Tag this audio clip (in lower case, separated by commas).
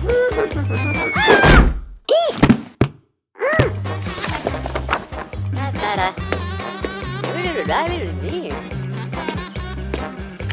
music, speech